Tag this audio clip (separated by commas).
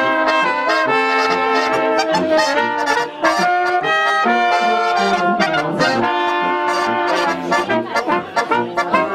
Trumpet, Trombone, Brass instrument, playing trombone